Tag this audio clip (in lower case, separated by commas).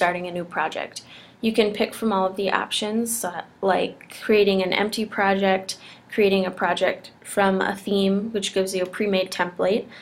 speech